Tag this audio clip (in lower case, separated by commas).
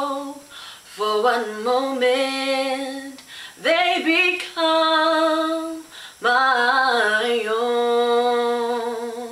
female singing